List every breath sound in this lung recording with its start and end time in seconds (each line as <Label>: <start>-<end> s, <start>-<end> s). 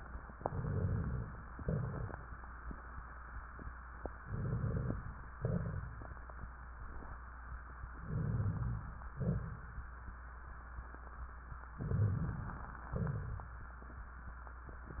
Inhalation: 0.28-1.50 s, 4.18-5.15 s, 8.00-9.06 s, 11.81-12.78 s
Exhalation: 1.50-2.36 s, 5.36-6.42 s, 9.17-9.91 s, 12.93-13.61 s
Rhonchi: 0.28-1.50 s, 4.18-5.15 s, 8.00-9.06 s, 9.17-9.91 s, 11.81-12.78 s, 12.93-13.61 s
Crackles: 1.50-2.36 s, 5.36-6.42 s